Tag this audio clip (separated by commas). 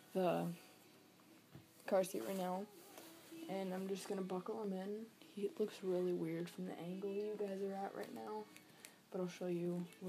Music, Speech